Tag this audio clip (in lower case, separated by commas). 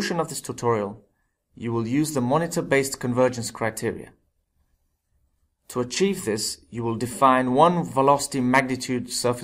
speech